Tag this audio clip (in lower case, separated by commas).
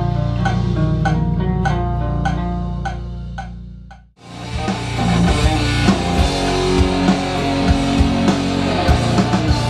music, guitar, musical instrument, electric guitar